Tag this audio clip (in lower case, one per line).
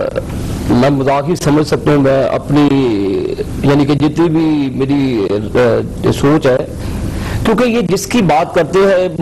speech